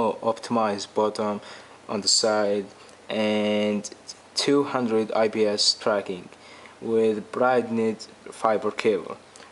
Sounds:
speech

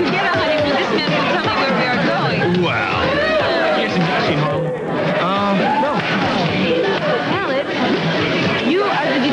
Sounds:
speech, music

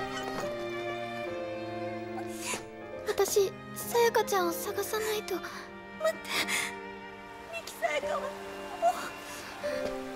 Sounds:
baby cry, music, speech

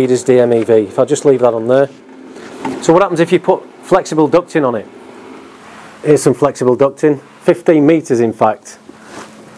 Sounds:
speech

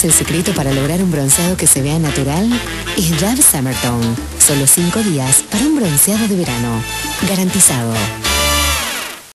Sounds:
speech, music

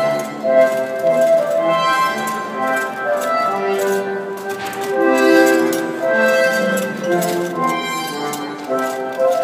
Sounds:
crackle, music

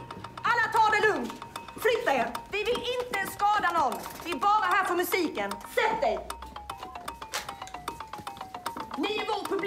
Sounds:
speech, music

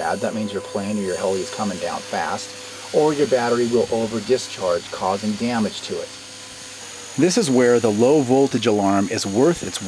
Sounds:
speech, outside, rural or natural

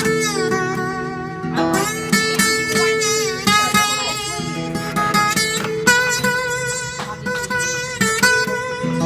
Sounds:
musical instrument, music, guitar, acoustic guitar, speech, strum, plucked string instrument, electric guitar

